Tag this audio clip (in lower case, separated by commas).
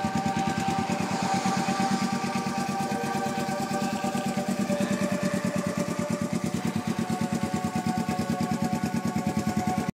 music, sound effect